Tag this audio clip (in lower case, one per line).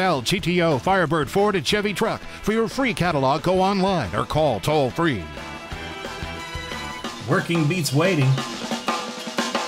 drum
bass drum